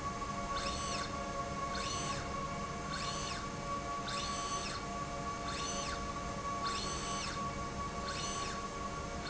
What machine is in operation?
slide rail